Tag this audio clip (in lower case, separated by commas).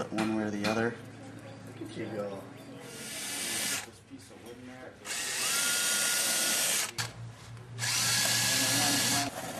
speech, inside a large room or hall, drill